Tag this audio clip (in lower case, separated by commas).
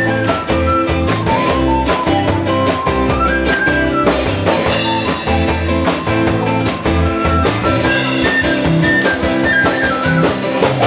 music